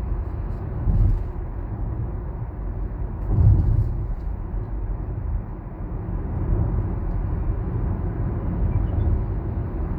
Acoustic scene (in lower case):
car